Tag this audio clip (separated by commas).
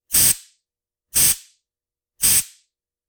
Hiss